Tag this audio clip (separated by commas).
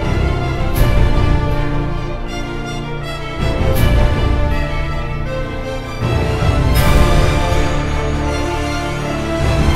Music